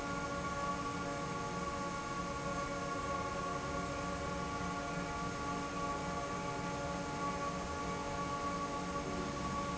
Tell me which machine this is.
fan